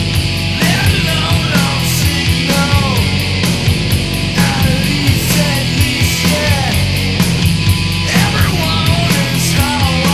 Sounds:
Music

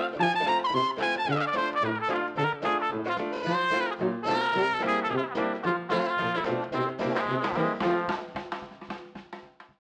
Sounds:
Music

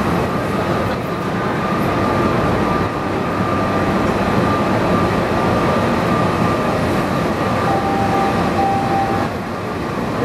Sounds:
Vehicle, underground, Train

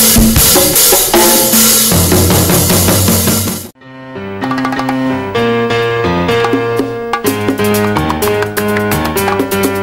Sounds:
playing timbales

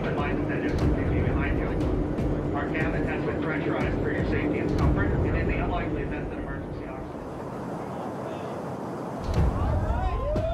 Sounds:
roller coaster running

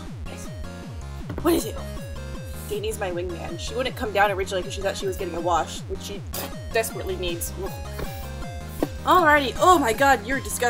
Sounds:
Speech, Music

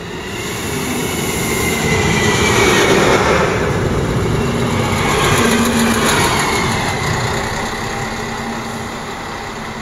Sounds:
Vehicle, Train, Railroad car, Rail transport

